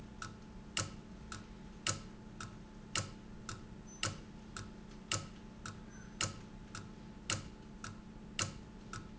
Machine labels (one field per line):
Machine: valve